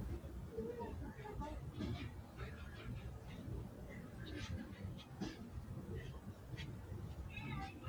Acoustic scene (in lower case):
residential area